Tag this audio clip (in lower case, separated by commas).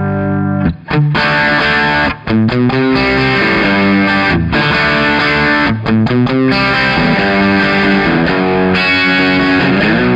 distortion, music, electric guitar